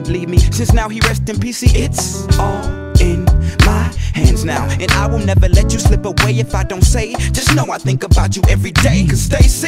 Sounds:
Music, Rhythm and blues

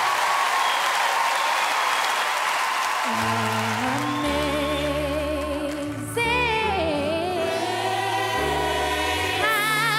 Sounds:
singing choir

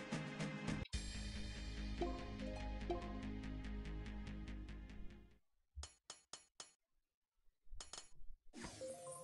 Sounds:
Music, inside a small room

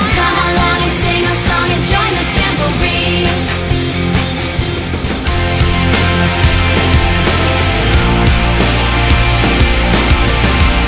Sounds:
Music

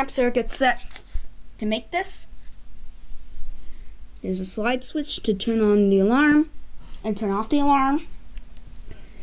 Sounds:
Speech

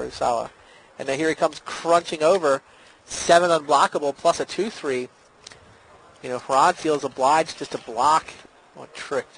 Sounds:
Speech

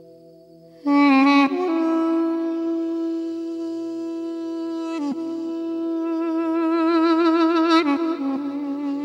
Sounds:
Musical instrument, Flute, Music

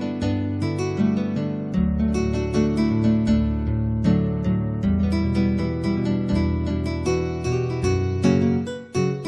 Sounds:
Music, Musical instrument, Keyboard (musical), Piano

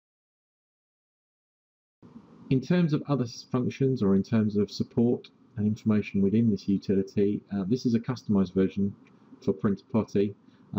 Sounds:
Speech

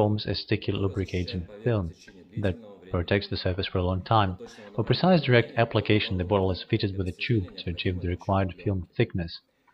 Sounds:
Speech

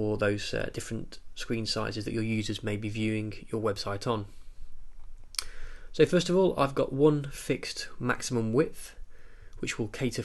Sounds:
Speech

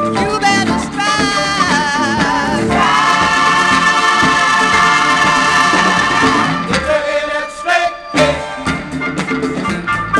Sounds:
Singing, Music, Funk, Gospel music

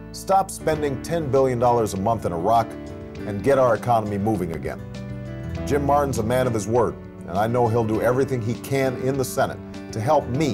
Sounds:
Music, Speech

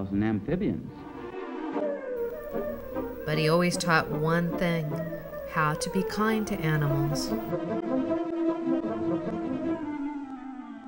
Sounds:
Music, Speech

